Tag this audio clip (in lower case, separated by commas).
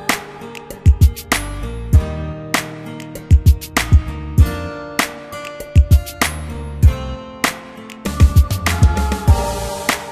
musical instrument, plucked string instrument, music, guitar